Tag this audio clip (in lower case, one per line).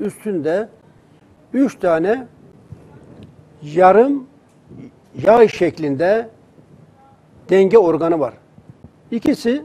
speech